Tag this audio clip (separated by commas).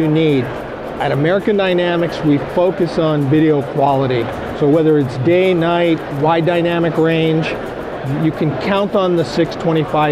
Music, Speech